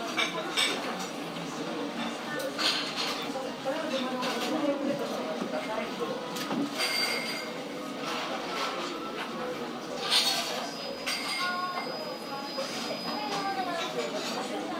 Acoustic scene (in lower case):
cafe